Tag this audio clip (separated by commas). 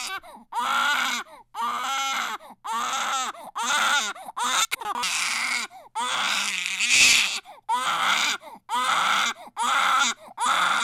sobbing, Human voice